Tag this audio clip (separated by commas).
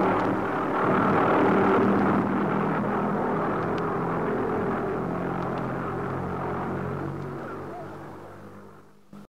Whir